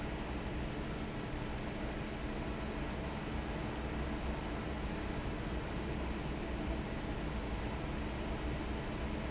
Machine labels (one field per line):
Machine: fan